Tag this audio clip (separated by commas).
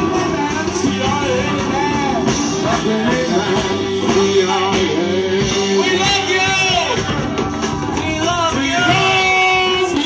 Music, Music of Latin America, Speech